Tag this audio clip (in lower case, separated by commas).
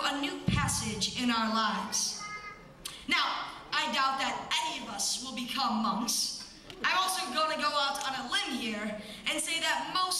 child speech, speech, narration